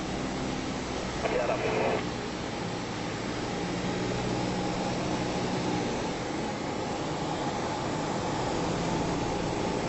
A propeller plane is accelerating in the back, while there is radio chatter in the background